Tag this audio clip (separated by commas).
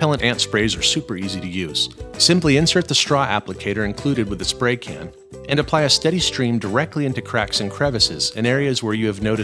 Speech, Music